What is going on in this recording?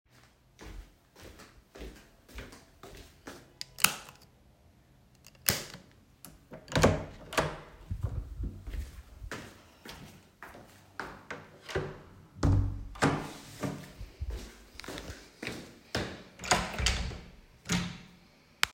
I walked toward the light switches with audible footsteps and turned off two switches one after another. I opened the first door, walked through it, and closed it. I then walked to the second door and opened it.